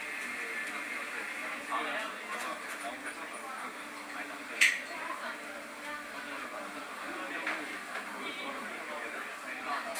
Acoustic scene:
cafe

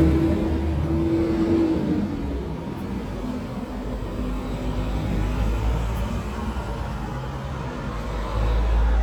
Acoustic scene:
street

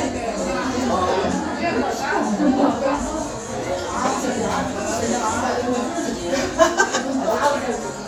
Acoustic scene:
crowded indoor space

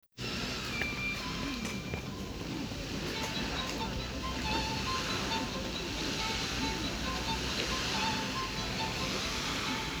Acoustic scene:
park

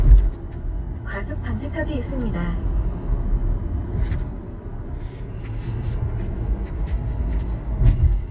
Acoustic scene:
car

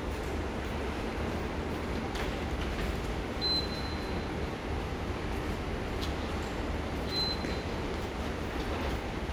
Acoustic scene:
subway station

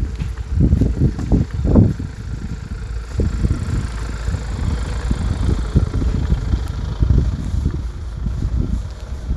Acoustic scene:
residential area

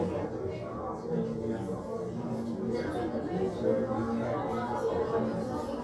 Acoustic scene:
crowded indoor space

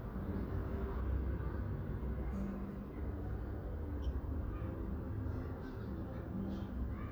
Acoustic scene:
residential area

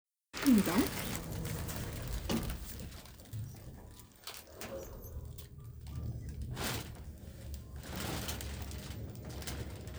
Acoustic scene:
elevator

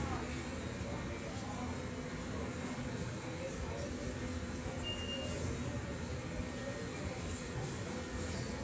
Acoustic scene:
subway station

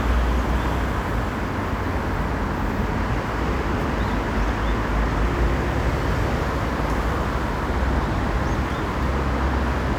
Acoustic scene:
street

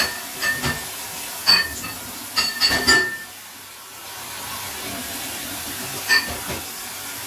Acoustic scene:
kitchen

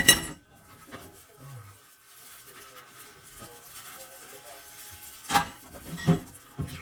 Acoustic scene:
kitchen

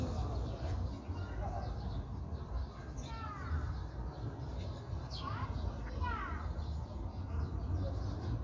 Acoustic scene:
park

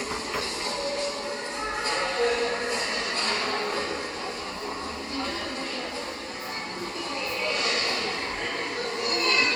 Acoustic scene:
subway station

